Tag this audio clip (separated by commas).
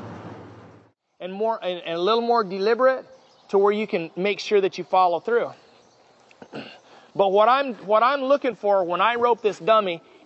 Speech